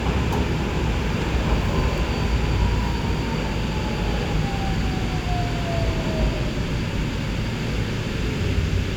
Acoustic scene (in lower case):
subway train